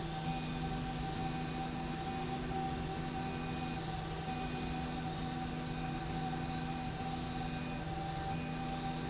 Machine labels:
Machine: slide rail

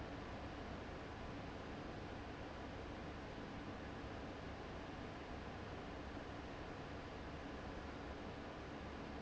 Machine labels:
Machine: fan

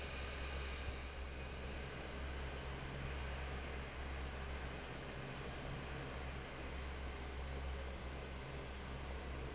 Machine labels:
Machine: fan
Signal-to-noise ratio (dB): 6 dB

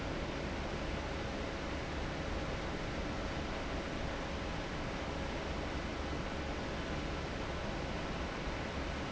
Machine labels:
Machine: fan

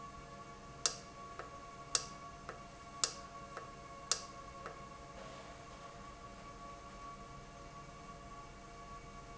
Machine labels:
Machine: valve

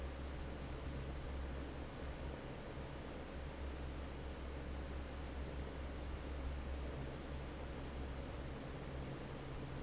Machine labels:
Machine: fan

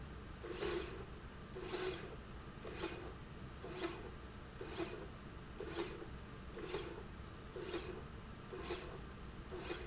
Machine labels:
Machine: slide rail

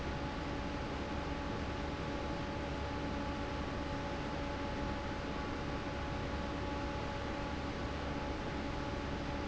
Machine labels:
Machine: fan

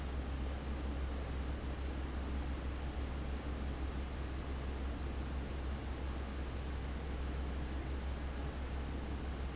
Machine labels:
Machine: fan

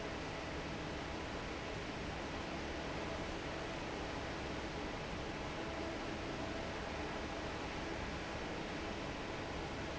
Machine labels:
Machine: fan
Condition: normal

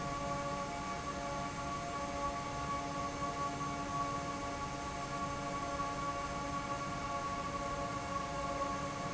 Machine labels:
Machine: fan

